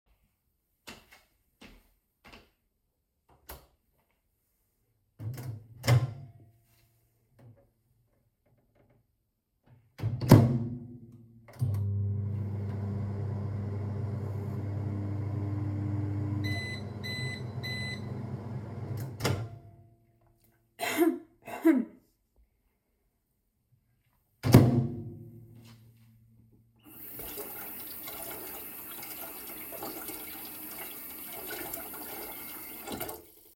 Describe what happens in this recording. I walked into the kitchen and turned on the light. I opened and started the microwave, which produced a beeping sound. After closing it, I turned on the water tap while standing near the sink.